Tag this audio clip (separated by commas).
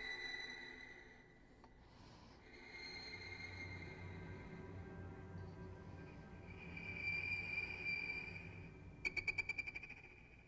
Music